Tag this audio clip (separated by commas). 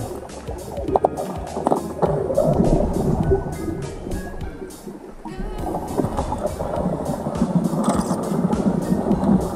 underwater bubbling